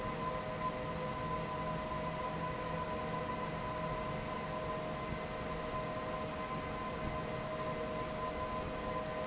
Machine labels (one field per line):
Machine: fan